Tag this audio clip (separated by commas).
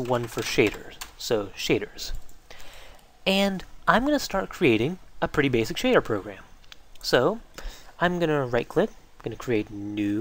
Speech